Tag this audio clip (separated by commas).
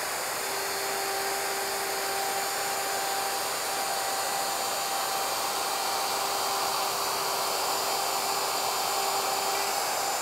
Tools, Power tool